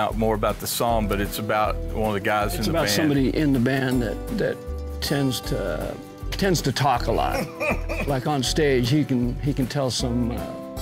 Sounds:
Speech, Music

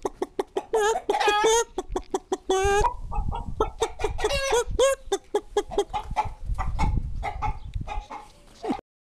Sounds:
Animal

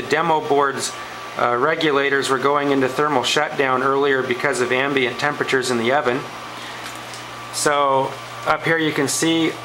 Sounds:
Speech

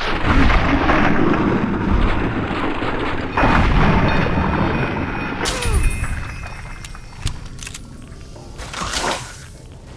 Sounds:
Music

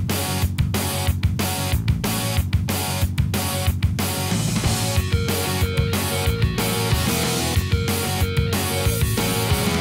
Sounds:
Music

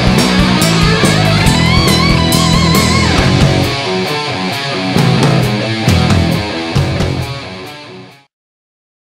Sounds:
Musical instrument, Electric guitar, Music, Guitar

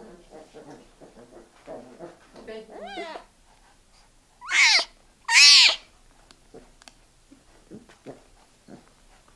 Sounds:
Animal, Yip

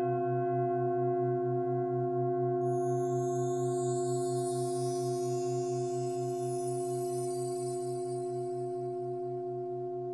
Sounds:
Singing bowl

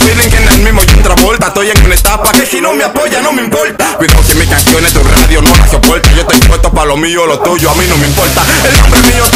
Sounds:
Music

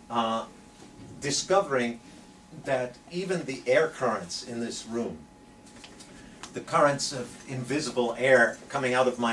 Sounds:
Speech

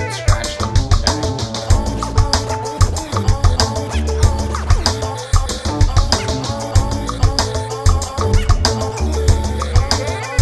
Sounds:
Music, Scratching (performance technique)

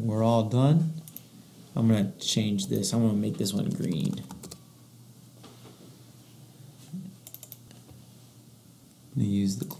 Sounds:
Computer keyboard

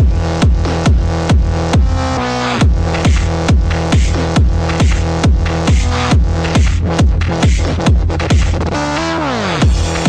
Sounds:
Music

